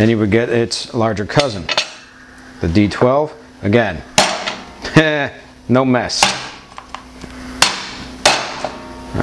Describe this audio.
A man speaks followed by slamming